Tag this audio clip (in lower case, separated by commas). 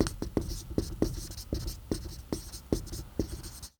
domestic sounds, writing